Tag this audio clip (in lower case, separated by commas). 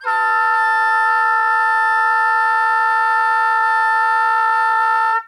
wind instrument, musical instrument, music